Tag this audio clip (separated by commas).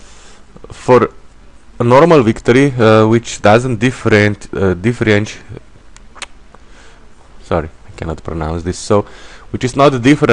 Speech